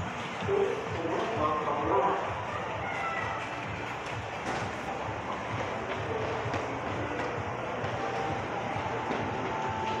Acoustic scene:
subway station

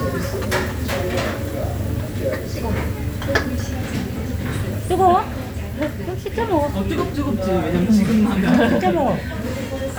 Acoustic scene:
restaurant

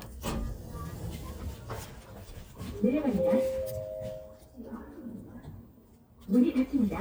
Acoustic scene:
elevator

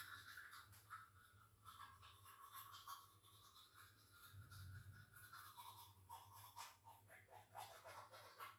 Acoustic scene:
restroom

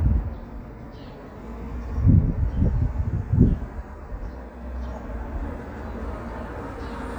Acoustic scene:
residential area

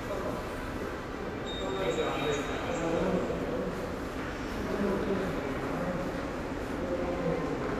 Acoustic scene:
subway station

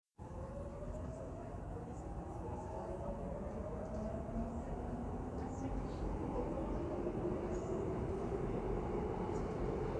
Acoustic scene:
subway train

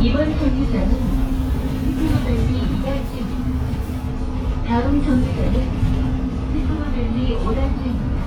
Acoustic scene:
bus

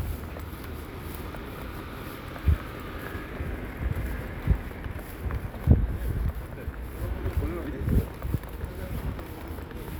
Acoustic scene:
residential area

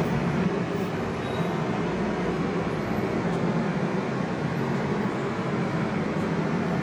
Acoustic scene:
subway station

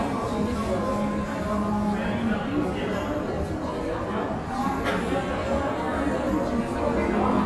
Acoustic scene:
cafe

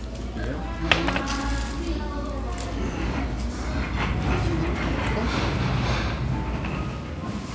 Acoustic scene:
restaurant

